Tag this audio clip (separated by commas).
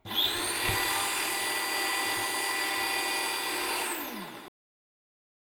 home sounds